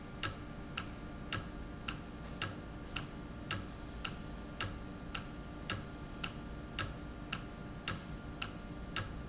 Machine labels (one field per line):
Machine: valve